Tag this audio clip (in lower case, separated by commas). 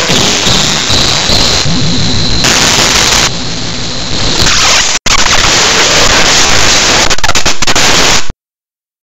clatter